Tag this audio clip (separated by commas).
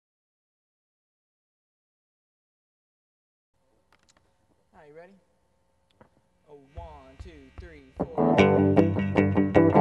Music, inside a large room or hall, Speech